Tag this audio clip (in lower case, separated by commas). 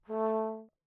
musical instrument, music, brass instrument